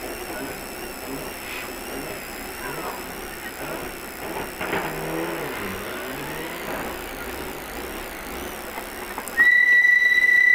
A muffled engine revs while a persistent whining and buzzing occurs